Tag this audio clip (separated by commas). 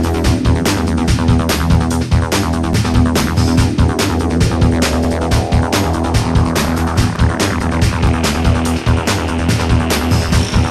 Music